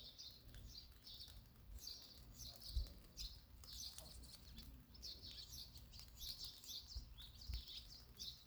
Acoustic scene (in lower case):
park